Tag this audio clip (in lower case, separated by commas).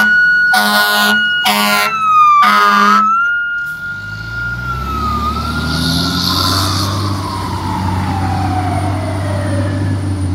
fire truck siren